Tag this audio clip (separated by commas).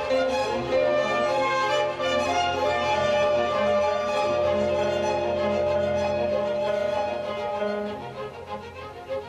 Guitar, Music, Bowed string instrument, Classical music, Orchestra, Musical instrument